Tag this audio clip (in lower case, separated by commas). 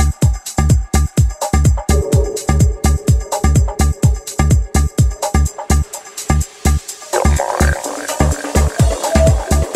music